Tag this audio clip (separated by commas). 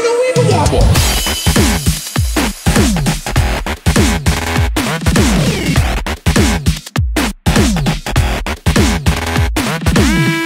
Music, Dubstep